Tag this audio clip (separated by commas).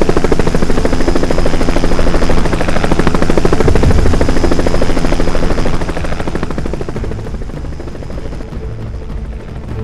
Helicopter